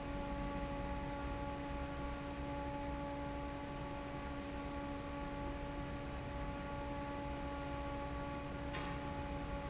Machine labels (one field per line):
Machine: fan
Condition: normal